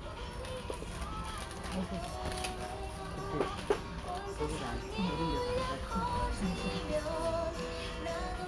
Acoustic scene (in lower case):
crowded indoor space